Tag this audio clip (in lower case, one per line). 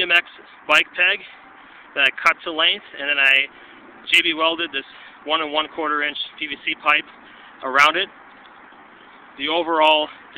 speech